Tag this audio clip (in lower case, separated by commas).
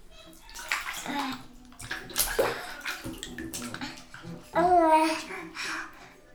bathtub (filling or washing), kid speaking, speech, human voice, domestic sounds